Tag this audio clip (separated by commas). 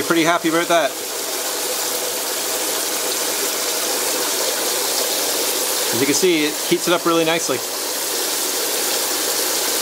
Water